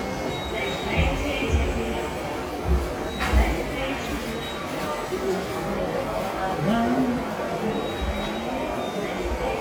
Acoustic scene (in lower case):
subway station